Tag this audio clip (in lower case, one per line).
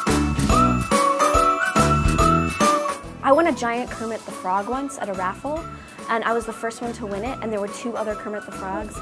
music
speech